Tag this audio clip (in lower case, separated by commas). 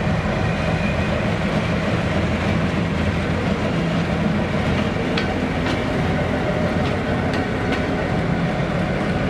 train whistling